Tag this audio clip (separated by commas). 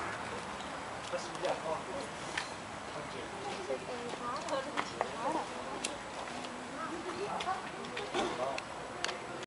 Speech